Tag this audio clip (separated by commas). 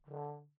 Brass instrument, Musical instrument, Music